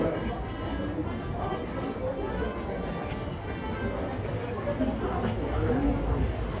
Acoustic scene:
subway station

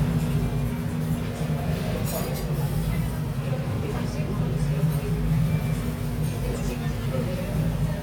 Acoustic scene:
restaurant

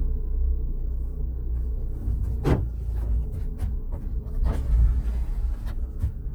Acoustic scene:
car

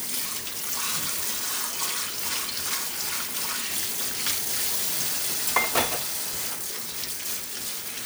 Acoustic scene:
kitchen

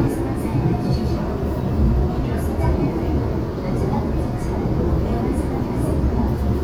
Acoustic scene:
subway train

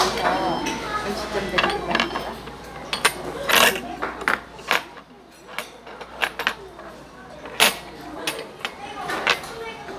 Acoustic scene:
restaurant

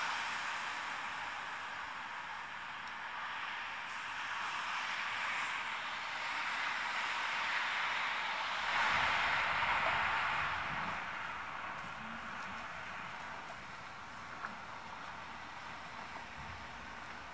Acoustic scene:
street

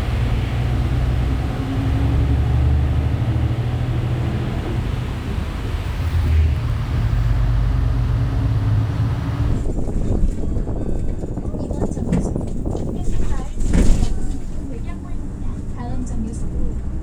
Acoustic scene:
bus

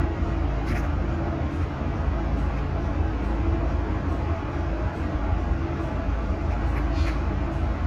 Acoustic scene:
bus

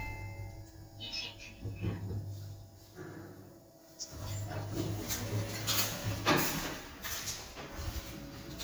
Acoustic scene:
elevator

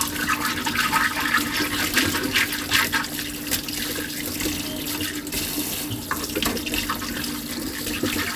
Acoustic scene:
kitchen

